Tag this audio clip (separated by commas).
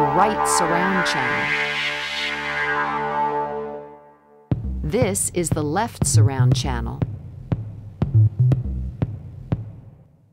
Speech, Soundtrack music, Music